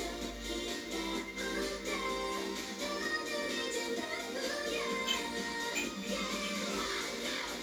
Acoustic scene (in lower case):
cafe